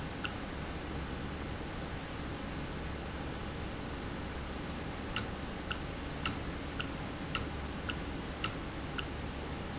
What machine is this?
valve